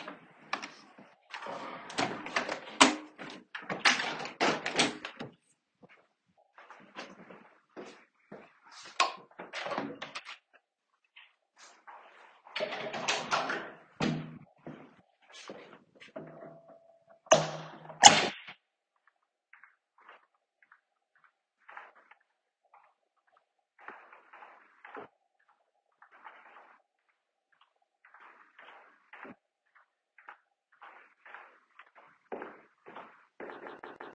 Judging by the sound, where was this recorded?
bedroom, hallway